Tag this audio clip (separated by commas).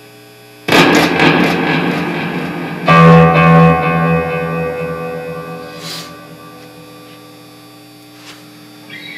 Strum, Musical instrument, Music, Guitar, Plucked string instrument